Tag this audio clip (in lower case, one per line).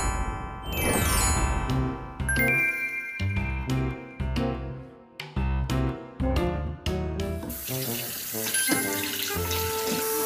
music